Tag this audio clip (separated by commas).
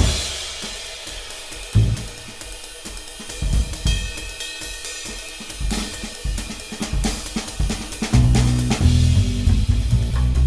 Snare drum, Music, Hi-hat, Cymbal